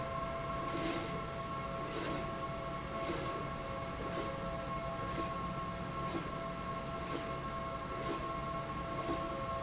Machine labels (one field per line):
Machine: slide rail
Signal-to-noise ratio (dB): -6 dB